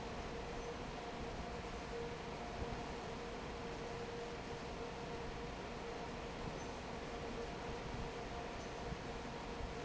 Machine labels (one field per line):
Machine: fan